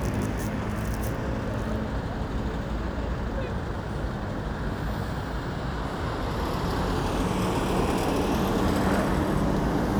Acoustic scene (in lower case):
street